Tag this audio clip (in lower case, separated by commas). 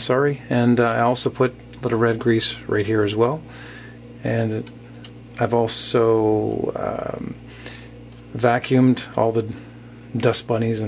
speech